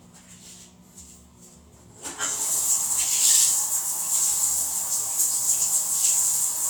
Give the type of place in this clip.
restroom